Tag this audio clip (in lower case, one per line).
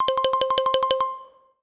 music
xylophone
mallet percussion
musical instrument
percussion